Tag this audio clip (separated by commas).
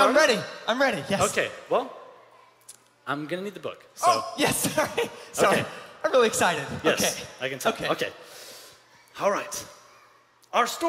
Speech